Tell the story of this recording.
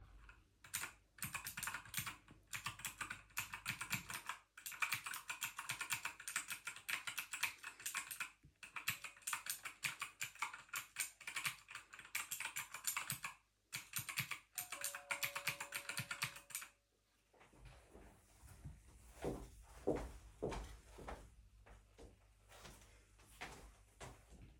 I typed on the keyboard, then the door bell rang, and I walked towards the door.